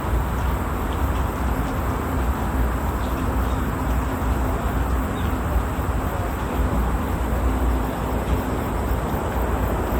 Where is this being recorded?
in a park